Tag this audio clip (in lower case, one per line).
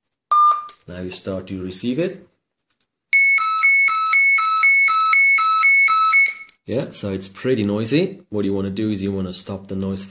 alarm
speech